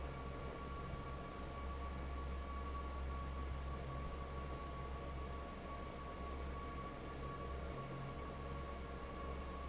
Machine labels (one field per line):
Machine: fan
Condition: normal